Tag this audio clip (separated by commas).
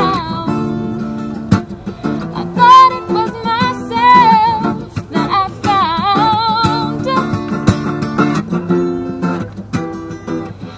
Singing